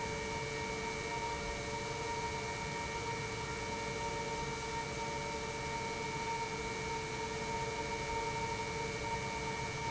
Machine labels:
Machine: pump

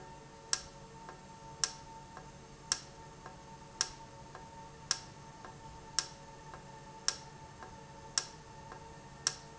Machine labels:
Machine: valve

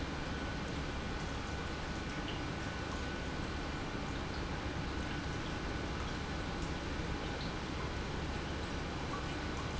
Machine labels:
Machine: pump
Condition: normal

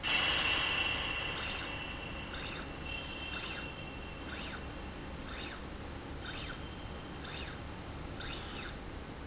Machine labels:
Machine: slide rail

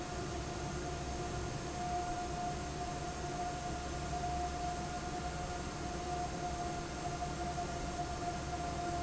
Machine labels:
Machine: fan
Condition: normal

